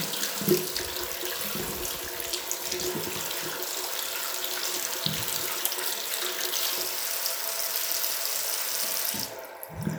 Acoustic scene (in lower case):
restroom